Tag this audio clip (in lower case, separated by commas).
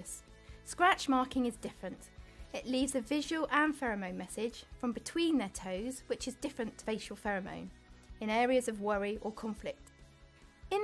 speech, music